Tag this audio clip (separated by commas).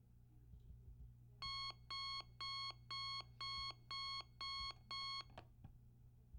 Alarm